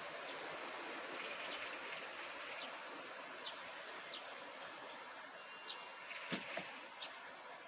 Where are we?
in a residential area